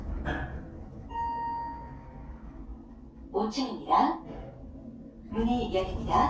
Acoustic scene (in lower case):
elevator